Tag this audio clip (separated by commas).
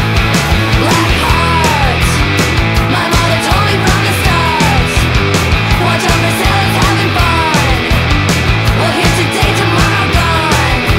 Music